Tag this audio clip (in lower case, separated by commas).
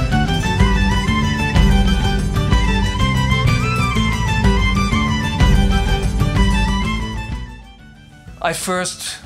music, percussion, speech